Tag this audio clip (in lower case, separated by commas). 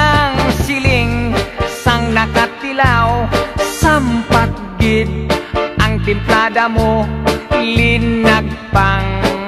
music